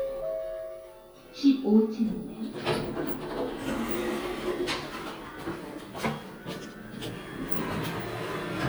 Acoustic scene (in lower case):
elevator